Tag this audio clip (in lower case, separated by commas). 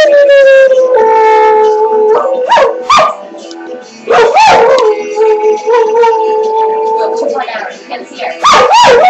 yip, music, speech